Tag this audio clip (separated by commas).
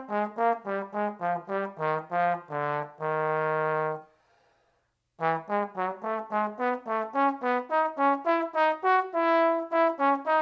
playing trombone